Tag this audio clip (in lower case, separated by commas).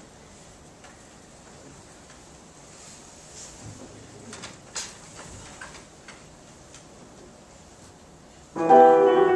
musical instrument, music